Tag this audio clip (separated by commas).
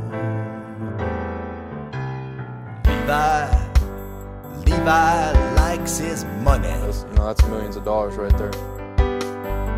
Music, Speech